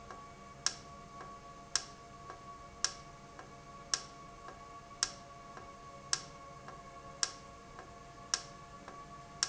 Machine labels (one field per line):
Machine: valve